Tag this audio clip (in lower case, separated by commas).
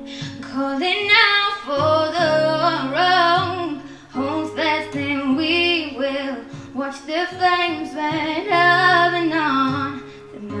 music, female singing